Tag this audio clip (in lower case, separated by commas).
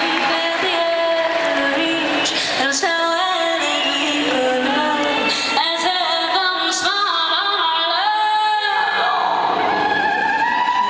music, singing